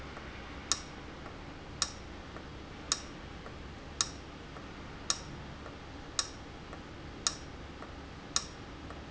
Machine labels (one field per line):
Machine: valve